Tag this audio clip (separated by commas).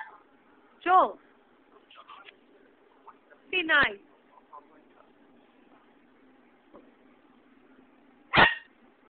Animal, Speech, pets